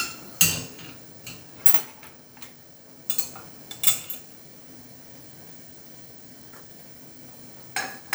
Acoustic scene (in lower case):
kitchen